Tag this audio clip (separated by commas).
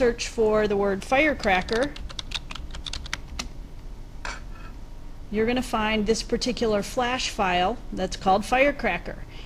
Speech